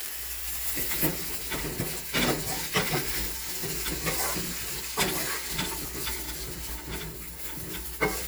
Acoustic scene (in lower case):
kitchen